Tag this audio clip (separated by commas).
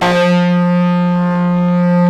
Guitar, Plucked string instrument, Bass guitar, Musical instrument, Music